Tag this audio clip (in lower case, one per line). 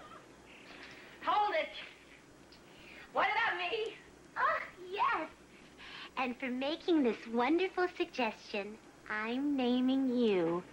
speech